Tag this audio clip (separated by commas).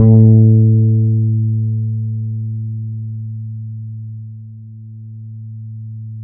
Musical instrument, Music, Bass guitar, Plucked string instrument, Guitar